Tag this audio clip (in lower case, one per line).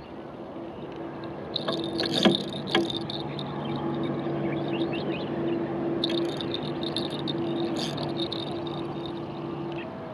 sailboat